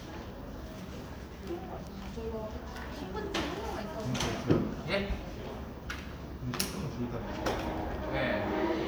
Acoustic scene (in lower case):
crowded indoor space